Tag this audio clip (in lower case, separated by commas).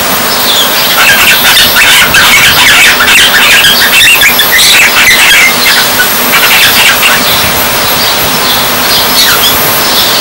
bird